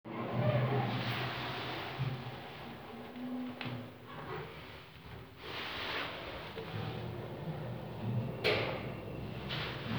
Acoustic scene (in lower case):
elevator